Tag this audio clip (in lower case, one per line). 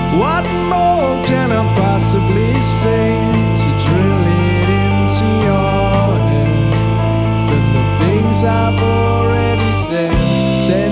music